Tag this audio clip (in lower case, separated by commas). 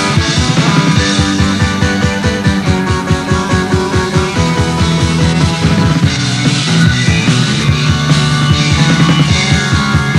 music